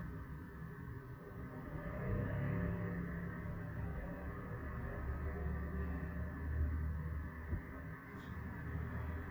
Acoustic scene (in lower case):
street